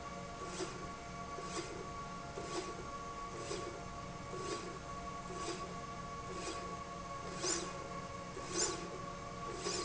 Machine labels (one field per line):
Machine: slide rail